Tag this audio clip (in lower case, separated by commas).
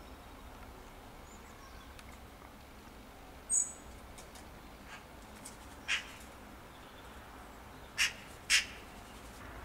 magpie calling